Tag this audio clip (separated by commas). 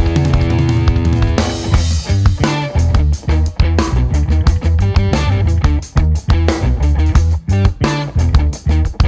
Music